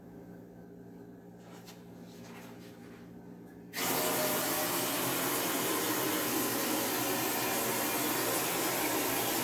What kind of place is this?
kitchen